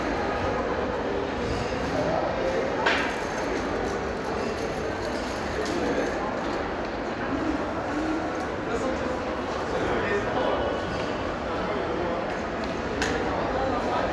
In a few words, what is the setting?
crowded indoor space